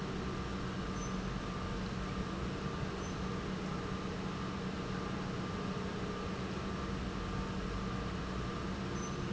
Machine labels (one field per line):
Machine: pump